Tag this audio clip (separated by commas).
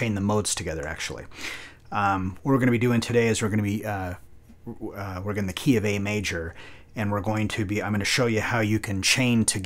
Speech